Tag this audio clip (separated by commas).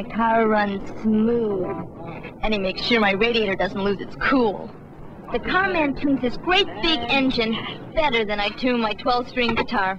Speech